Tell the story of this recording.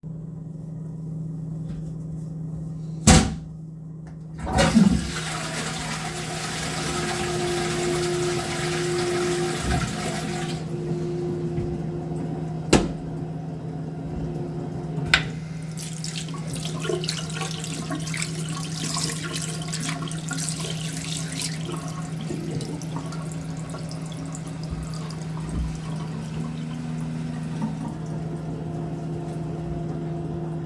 I closed the toilet lid, flushed the toilet, opened the lid again and washed my hands afterwards